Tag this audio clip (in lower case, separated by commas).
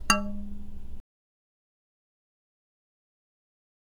speech, human voice, male speech